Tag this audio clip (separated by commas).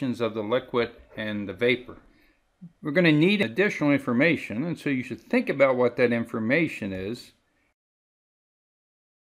Speech